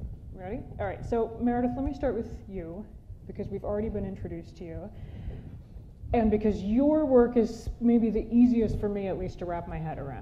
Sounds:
Speech

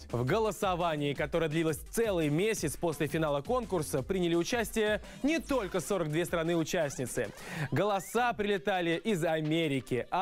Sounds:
Speech

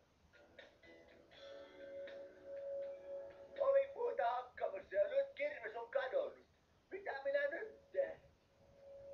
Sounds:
Speech, Music

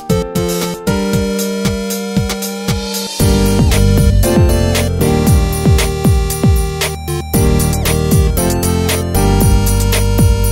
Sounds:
Music

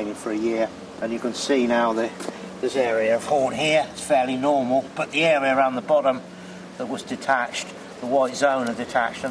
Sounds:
Speech

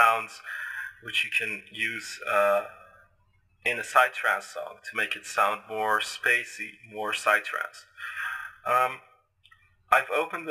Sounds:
Speech

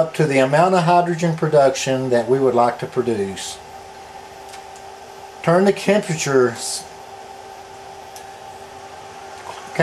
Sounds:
Speech

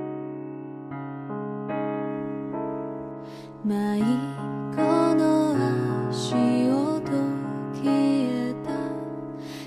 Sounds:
Music

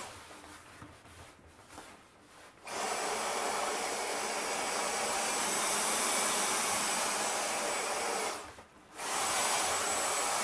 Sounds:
vacuum cleaner cleaning floors

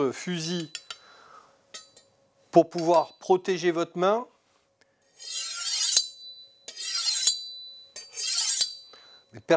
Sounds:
sharpen knife

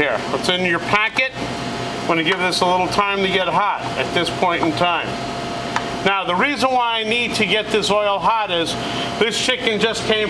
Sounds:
Speech

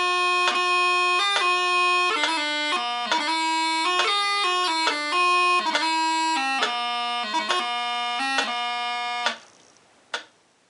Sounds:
woodwind instrument

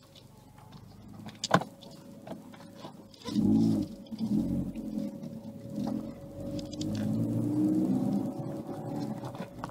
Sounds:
Speech

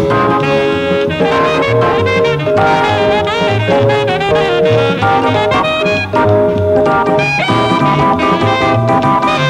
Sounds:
Brass instrument, Saxophone

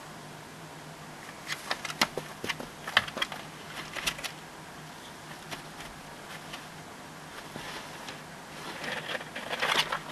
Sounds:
Chewing

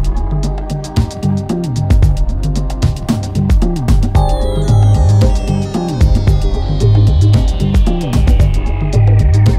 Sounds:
Speech

